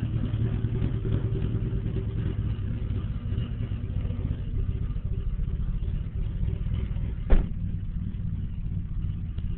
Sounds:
vehicle, car

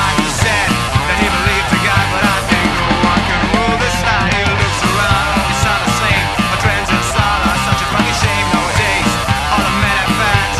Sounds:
music, rock and roll

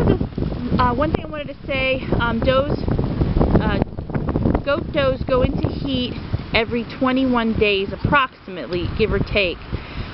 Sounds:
speech

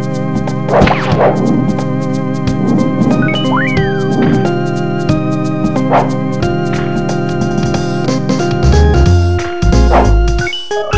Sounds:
music, video game music

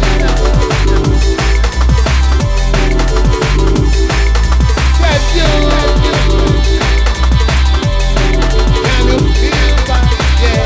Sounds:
singing, music, electronic music, exciting music

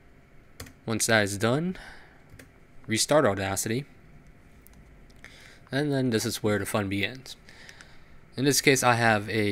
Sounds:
speech

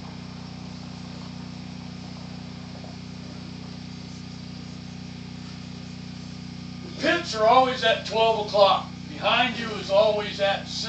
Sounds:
speech

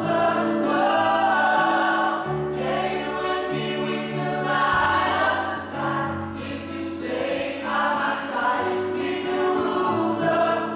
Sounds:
choir, music, female singing, male singing

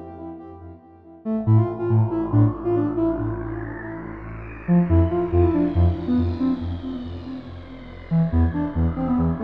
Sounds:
electronic music, trance music, music, synthesizer

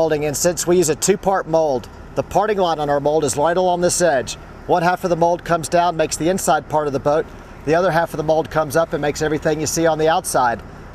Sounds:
speech

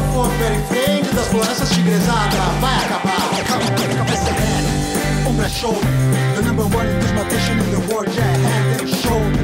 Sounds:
female singing, male singing, music

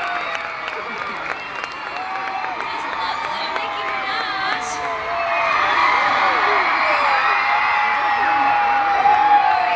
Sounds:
speech

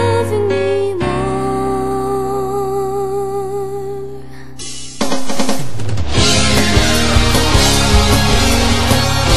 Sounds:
music, house music, background music

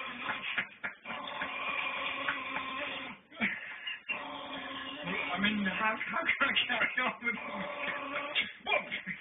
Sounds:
dog, speech, inside a large room or hall, domestic animals

